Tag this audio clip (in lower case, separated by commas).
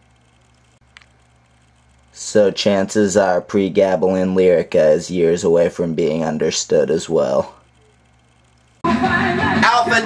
music, speech